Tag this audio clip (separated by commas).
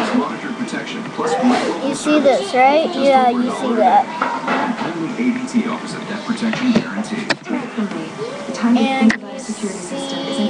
Music, Speech